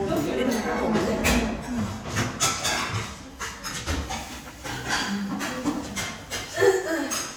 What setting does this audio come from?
crowded indoor space